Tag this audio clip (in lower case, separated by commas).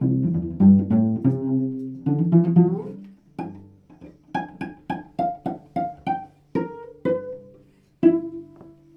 bowed string instrument, musical instrument, music